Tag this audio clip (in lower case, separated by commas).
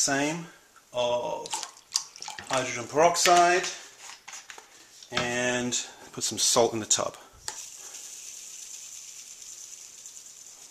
speech